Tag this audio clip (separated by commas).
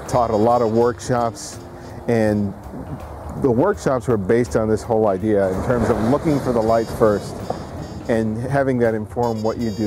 Music, Speech